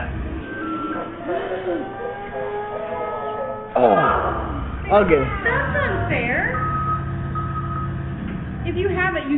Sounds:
Speech, Reversing beeps

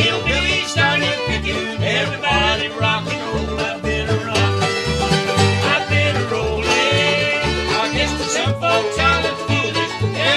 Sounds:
Banjo, Music, Musical instrument, Country

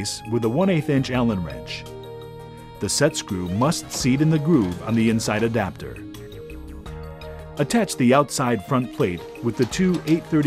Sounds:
Speech, Music

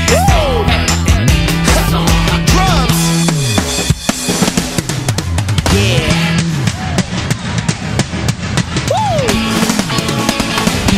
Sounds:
Music, Drum kit

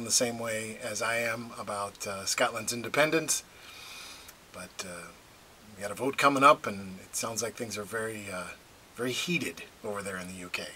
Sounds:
Speech

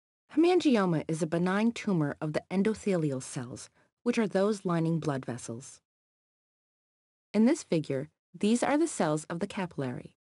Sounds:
Speech

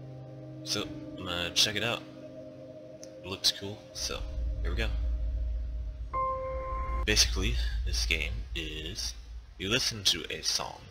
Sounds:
Speech, Music

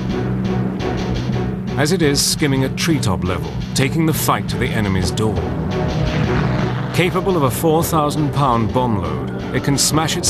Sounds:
Speech, Music

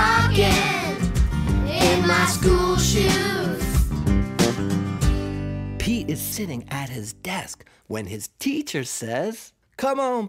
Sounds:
Speech, Music

